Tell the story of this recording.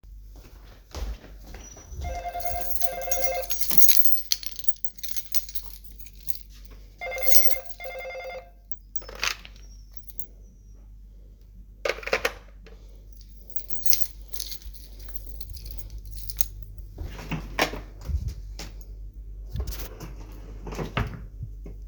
I was holding my keys, ready to leave the appartement when the door bell rang. I picked up the answering machine, then put it back and grabbed my wallet from the drawer to leave the appartement.